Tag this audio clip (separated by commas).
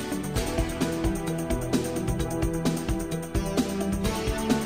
Music